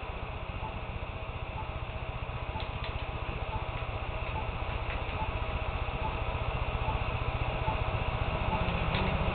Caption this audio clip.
A rumble of some vehicle, a beeping noise, and some mechanical clicking noise